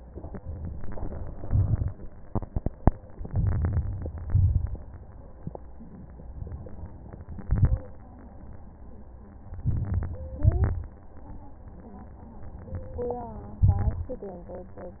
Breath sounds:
0.68-1.45 s: inhalation
1.41-2.20 s: crackles
1.45-2.22 s: exhalation
3.19-4.28 s: crackles
3.23-4.31 s: inhalation
4.31-5.08 s: exhalation
4.31-5.08 s: crackles
7.39-7.96 s: inhalation
7.39-7.99 s: crackles
9.61-10.36 s: inhalation
10.41-11.16 s: exhalation
10.41-11.20 s: crackles
13.64-14.41 s: inhalation

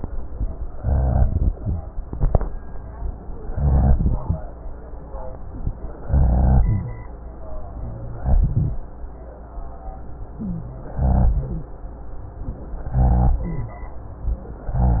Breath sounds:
0.76-1.50 s: inhalation
0.76-1.50 s: rhonchi
3.53-4.27 s: inhalation
3.53-4.27 s: rhonchi
6.11-6.95 s: inhalation
6.11-6.95 s: rhonchi
8.25-8.77 s: inhalation
8.25-8.77 s: rhonchi
10.42-10.70 s: wheeze
10.95-11.75 s: inhalation
10.95-11.75 s: rhonchi
12.98-13.78 s: inhalation
12.98-13.78 s: rhonchi

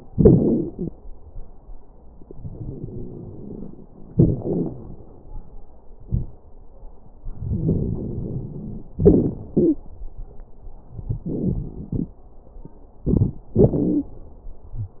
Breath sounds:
2.30-3.80 s: inhalation
2.30-3.80 s: crackles
4.12-4.75 s: exhalation
4.12-4.75 s: crackles
7.41-8.86 s: inhalation
7.41-8.86 s: crackles
8.98-9.82 s: exhalation
9.53-9.82 s: wheeze
13.12-13.40 s: inhalation
13.12-13.40 s: crackles
13.58-14.16 s: exhalation
13.58-14.16 s: crackles

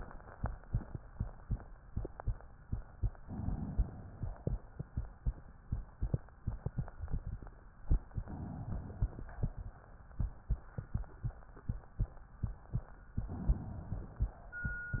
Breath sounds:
3.23-4.25 s: inhalation
8.22-9.24 s: inhalation
13.28-14.31 s: inhalation

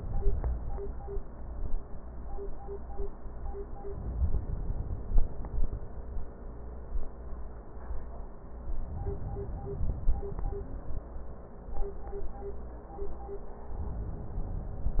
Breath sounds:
3.90-5.70 s: inhalation
8.83-10.80 s: inhalation

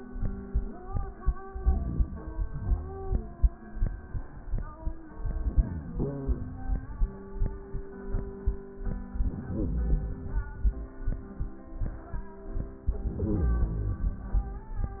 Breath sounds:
1.50-2.79 s: inhalation
5.26-6.37 s: inhalation
9.14-10.99 s: inhalation
12.90-14.97 s: inhalation

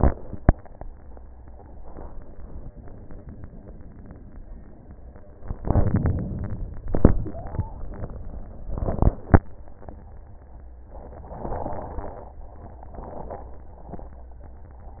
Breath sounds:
5.56-6.81 s: crackles
5.58-6.81 s: inhalation
6.84-7.66 s: exhalation
7.29-7.65 s: wheeze

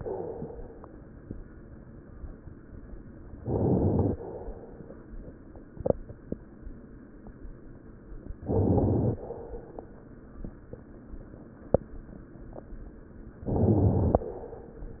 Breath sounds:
3.36-4.20 s: inhalation
3.36-4.20 s: crackles
8.43-9.26 s: inhalation
8.43-9.26 s: crackles
13.49-14.33 s: inhalation
13.49-14.33 s: crackles

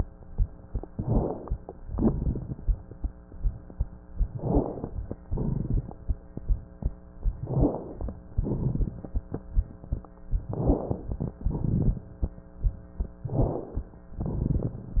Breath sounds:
0.87-1.60 s: crackles
0.89-1.58 s: inhalation
1.90-2.68 s: exhalation
1.90-2.68 s: crackles
4.27-4.99 s: crackles
4.33-5.01 s: inhalation
5.29-6.07 s: exhalation
5.29-6.07 s: crackles
7.40-8.18 s: inhalation
7.40-8.18 s: crackles
8.37-9.20 s: exhalation
8.37-9.20 s: crackles
10.51-11.35 s: inhalation
10.51-11.35 s: crackles
11.40-12.07 s: exhalation
11.40-12.07 s: crackles
13.30-13.97 s: inhalation
13.30-13.97 s: crackles
14.21-15.00 s: exhalation
14.21-15.00 s: crackles

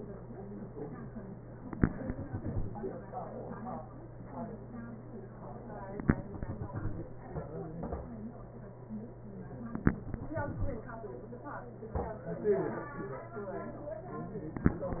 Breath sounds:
1.72-3.05 s: exhalation
6.13-7.46 s: exhalation
9.99-11.33 s: exhalation

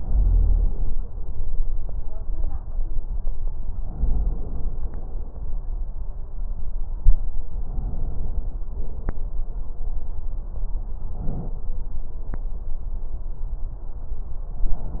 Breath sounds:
0.00-0.92 s: inhalation
3.90-4.82 s: inhalation
7.66-8.59 s: inhalation
8.68-9.52 s: exhalation
11.06-11.62 s: inhalation
14.43-14.98 s: inhalation

